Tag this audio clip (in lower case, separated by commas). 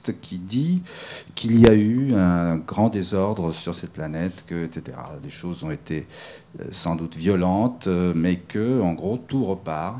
speech